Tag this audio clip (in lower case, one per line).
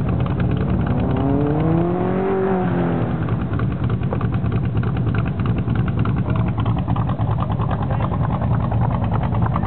speech